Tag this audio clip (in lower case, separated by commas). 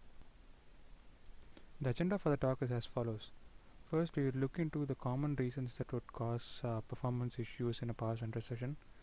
speech